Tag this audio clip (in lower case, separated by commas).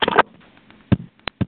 alarm, telephone